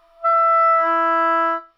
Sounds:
musical instrument, woodwind instrument, music

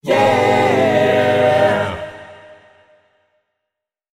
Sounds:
musical instrument, singing, music, human voice

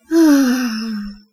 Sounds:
human voice, sigh

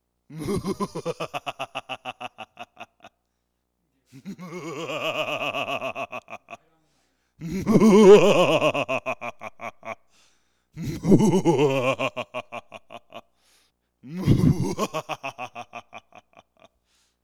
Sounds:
laughter, human voice

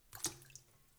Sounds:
water, splash, liquid

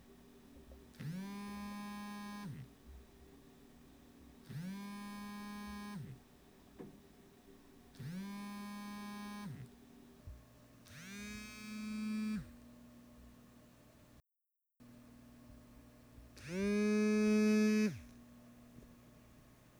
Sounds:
alarm, telephone

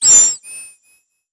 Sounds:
animal

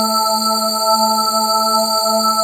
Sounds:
musical instrument, music, organ, keyboard (musical)

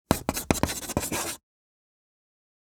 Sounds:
writing, domestic sounds

